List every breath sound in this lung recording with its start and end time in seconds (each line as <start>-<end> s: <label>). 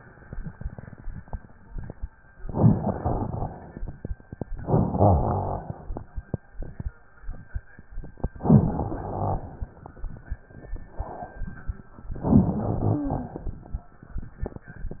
2.47-3.72 s: inhalation
2.47-3.72 s: crackles
4.65-5.81 s: rhonchi
4.65-5.90 s: inhalation
8.44-9.60 s: inhalation
8.44-9.60 s: rhonchi
12.26-13.42 s: inhalation
12.26-13.42 s: rhonchi